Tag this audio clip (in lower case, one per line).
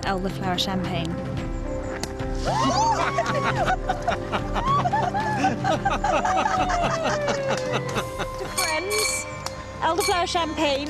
music
speech